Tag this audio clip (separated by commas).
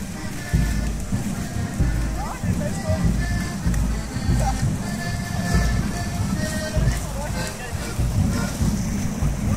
Waterfall, Speech, Music